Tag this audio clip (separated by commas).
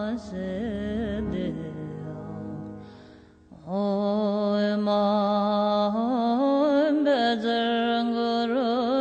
Mantra